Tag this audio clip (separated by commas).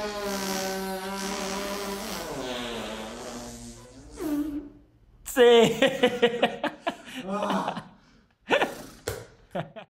Mechanisms